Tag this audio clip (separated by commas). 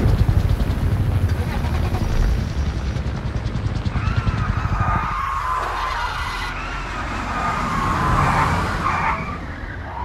Sound effect